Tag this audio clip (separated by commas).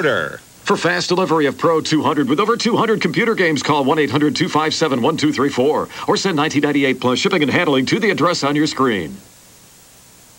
Speech